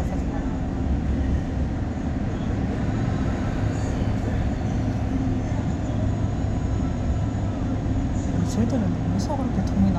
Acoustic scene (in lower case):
bus